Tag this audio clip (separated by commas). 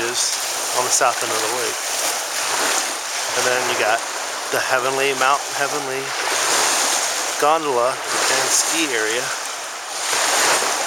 Speech